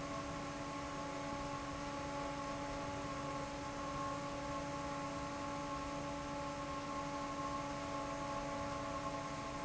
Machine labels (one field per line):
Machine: fan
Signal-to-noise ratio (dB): 0 dB